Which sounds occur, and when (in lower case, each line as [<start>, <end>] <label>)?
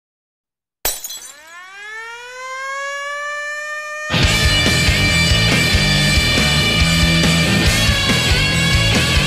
[0.79, 1.52] shatter
[1.00, 4.09] siren
[4.06, 9.25] music